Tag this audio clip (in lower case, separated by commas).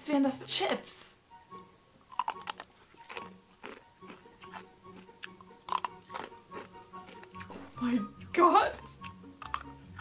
people eating crisps